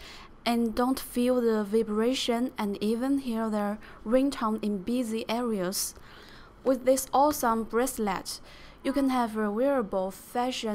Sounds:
Speech

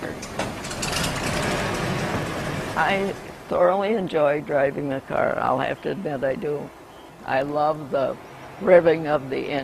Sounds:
Speech, Car, Vehicle

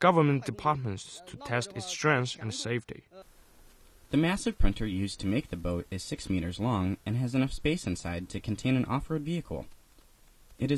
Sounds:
Speech

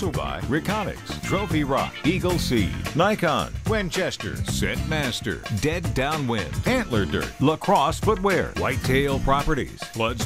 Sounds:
Speech, Music

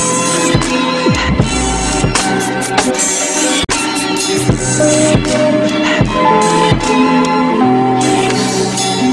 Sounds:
Spray, Music

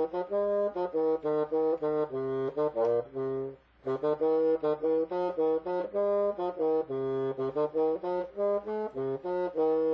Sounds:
playing bassoon

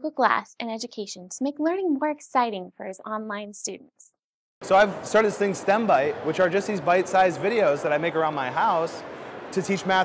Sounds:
Speech

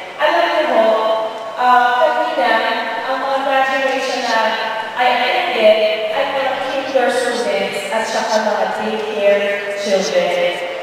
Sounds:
Female speech, Speech, monologue

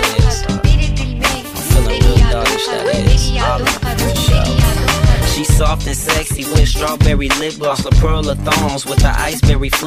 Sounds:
Hip hop music, Rhythm and blues, Music

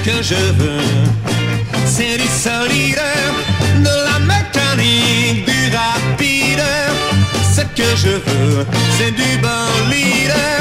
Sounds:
Music, Psychedelic rock

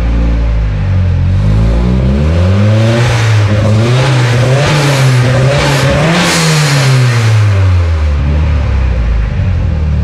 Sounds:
Sound effect

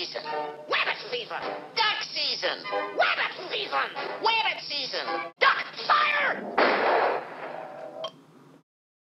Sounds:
Speech

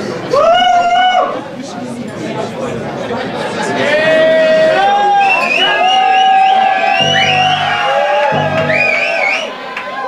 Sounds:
Speech, Music

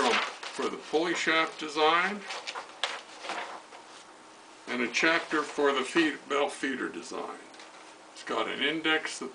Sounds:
Speech

